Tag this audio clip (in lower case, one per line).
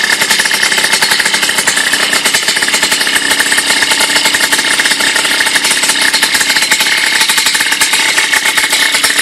engine
idling